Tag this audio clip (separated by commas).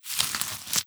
Tearing